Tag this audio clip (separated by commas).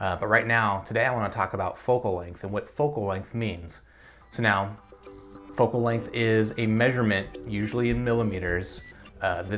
Speech